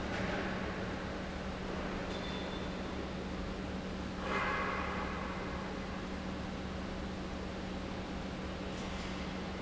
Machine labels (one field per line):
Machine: pump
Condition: normal